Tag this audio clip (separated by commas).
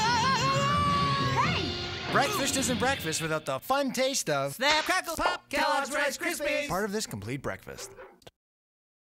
Speech, Music